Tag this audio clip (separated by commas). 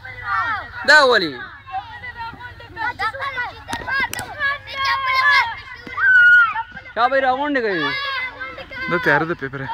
Speech